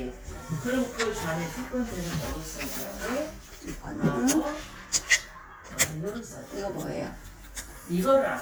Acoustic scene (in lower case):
crowded indoor space